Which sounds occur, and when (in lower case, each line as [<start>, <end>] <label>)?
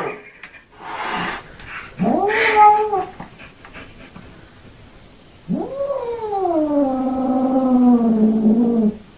[0.00, 0.55] cat
[0.00, 9.15] mechanisms
[0.35, 0.49] tick
[0.84, 1.42] cat
[1.52, 1.65] tick
[1.62, 1.86] cat
[1.99, 3.04] caterwaul
[3.14, 3.28] generic impact sounds
[3.34, 3.48] cat
[3.57, 3.76] generic impact sounds
[3.60, 4.13] cat
[4.07, 4.23] generic impact sounds
[5.43, 8.96] caterwaul